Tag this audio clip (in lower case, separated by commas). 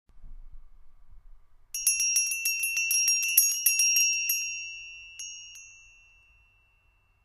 bell